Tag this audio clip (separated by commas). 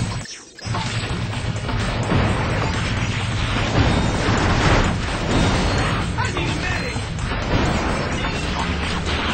Mechanisms